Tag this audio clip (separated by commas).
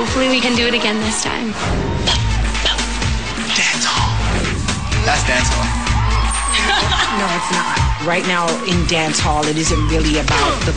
Speech, Music